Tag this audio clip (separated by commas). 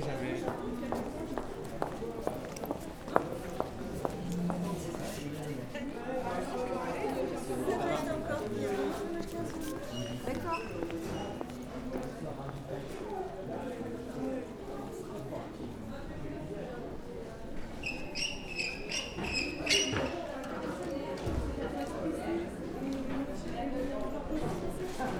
Human voice